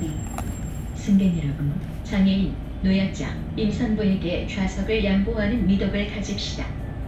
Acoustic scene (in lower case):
bus